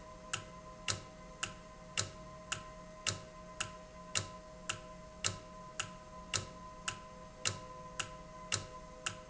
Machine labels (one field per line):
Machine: valve